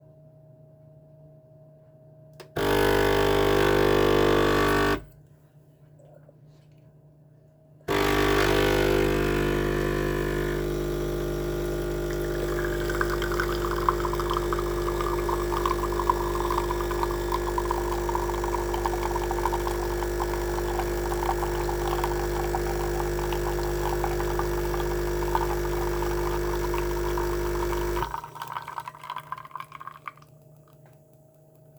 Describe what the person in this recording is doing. I put a cup in the coffee machine. It poured a coffe for me.